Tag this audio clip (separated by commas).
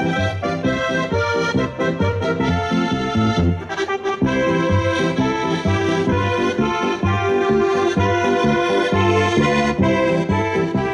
Accordion